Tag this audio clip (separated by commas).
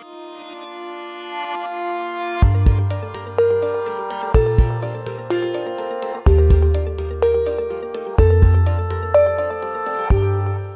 Accordion, Music